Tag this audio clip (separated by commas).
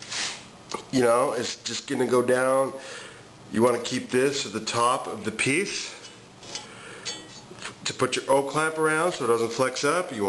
Speech